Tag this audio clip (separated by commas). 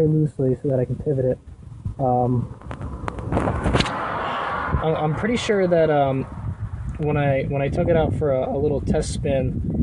Speech